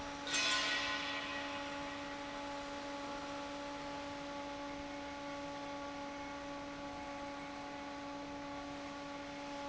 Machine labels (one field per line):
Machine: fan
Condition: normal